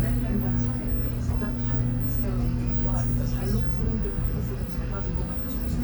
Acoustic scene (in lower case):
bus